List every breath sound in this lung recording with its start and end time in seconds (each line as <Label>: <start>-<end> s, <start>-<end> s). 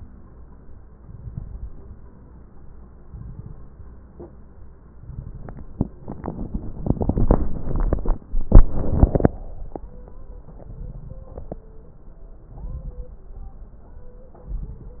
Inhalation: 0.99-1.71 s, 3.10-3.82 s, 5.01-5.74 s, 10.49-11.30 s, 12.48-13.30 s, 14.48-15.00 s
Crackles: 0.99-1.71 s, 3.10-3.82 s, 5.01-5.74 s, 10.49-11.30 s, 12.48-13.30 s, 14.48-15.00 s